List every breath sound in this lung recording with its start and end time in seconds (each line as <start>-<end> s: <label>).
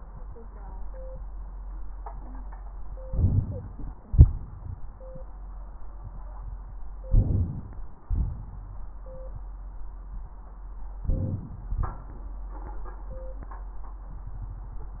3.03-4.00 s: inhalation
4.05-5.02 s: exhalation
4.05-5.02 s: crackles
7.06-8.03 s: inhalation
8.10-9.07 s: exhalation
11.05-11.75 s: inhalation
11.74-12.44 s: exhalation